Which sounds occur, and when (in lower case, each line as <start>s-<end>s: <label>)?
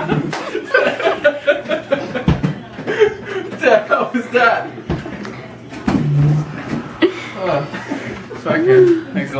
0.0s-3.6s: laughter
0.0s-9.3s: background noise
3.4s-4.7s: male speech
8.3s-9.3s: male speech